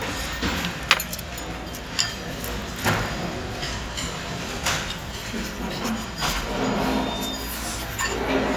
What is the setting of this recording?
restaurant